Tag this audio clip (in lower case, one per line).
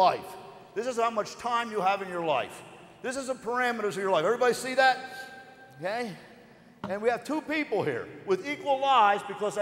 speech